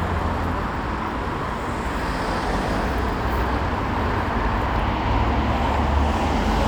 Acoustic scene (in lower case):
street